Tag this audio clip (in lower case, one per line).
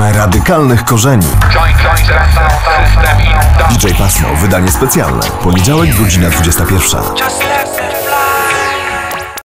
speech
music